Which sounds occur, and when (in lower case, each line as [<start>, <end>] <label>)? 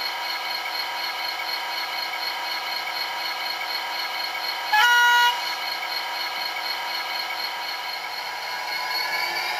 [0.00, 9.55] mechanisms
[4.73, 5.32] brief tone